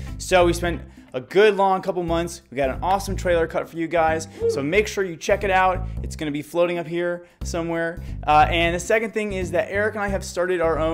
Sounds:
speech, music

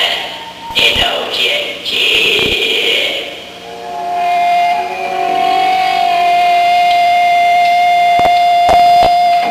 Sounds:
music, cacophony, speech

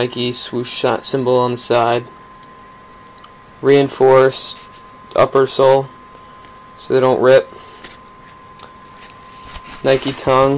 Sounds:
speech

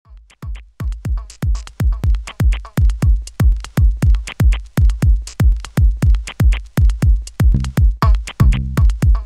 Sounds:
sampler

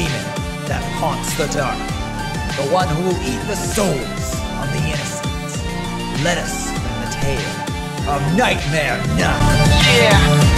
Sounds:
music, speech

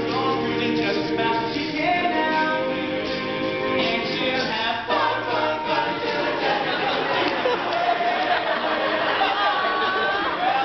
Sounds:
music, crowd

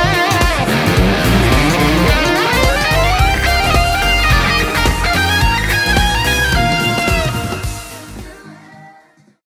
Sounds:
music, plucked string instrument, musical instrument, guitar

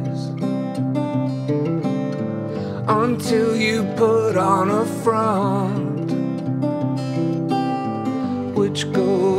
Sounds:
wedding music, music

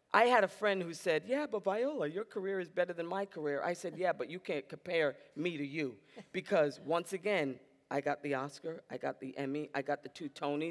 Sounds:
female speech

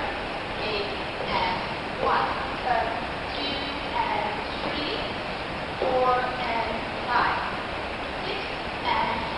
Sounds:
speech, footsteps

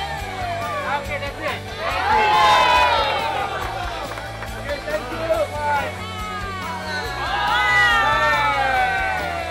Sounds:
outside, urban or man-made, music, speech

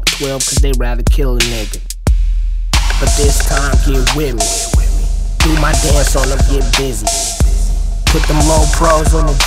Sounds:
music

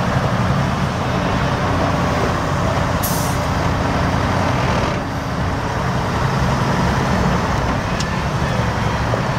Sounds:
vehicle, truck

